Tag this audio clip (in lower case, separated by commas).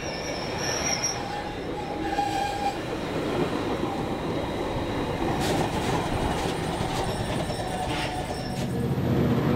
train horning